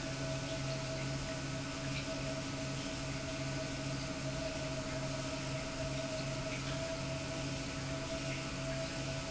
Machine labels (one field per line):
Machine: pump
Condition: normal